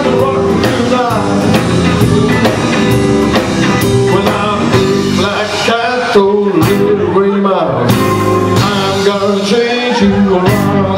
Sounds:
Blues, Music

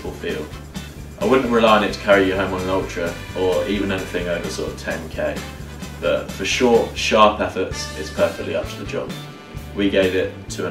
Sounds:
inside a small room, Music, Speech

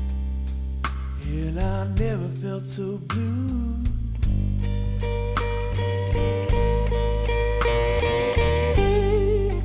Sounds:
slide guitar, Music

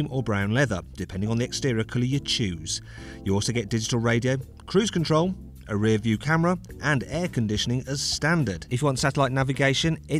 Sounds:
Music, Speech

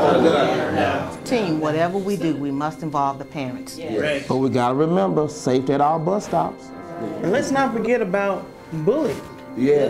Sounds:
Speech, Music

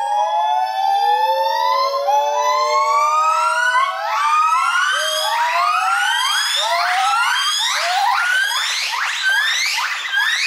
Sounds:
gibbon howling

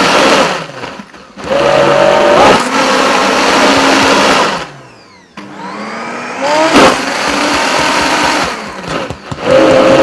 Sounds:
Blender

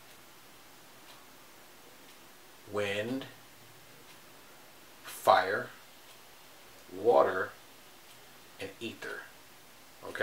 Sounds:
inside a small room, Speech

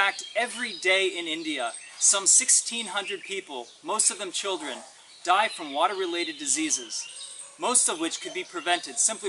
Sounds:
Speech

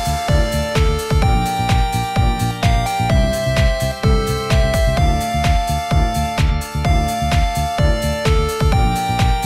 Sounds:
Music

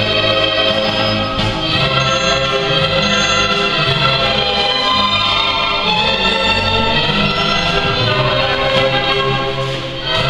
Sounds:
Swing music, Music

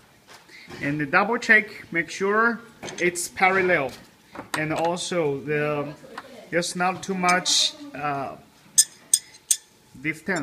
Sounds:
Cutlery, dishes, pots and pans

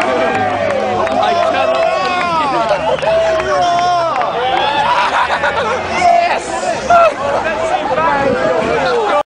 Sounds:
Speech

